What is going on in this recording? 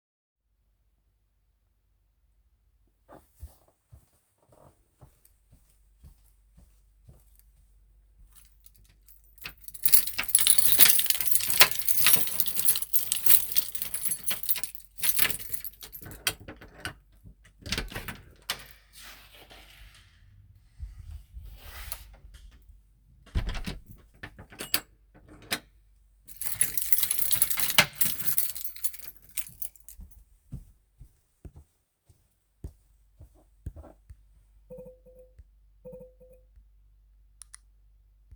Walking towards the door with keys and opening the door.